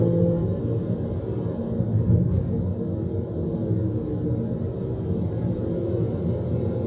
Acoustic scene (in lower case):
car